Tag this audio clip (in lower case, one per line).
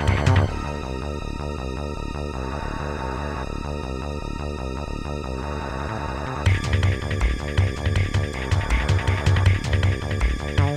music